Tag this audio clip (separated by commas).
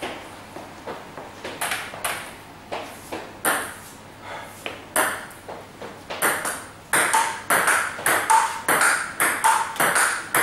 inside a small room